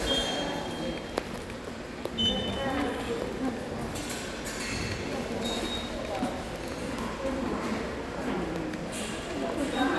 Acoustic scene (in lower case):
subway station